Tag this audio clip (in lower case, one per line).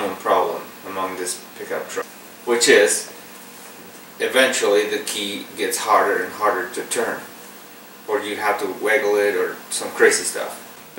speech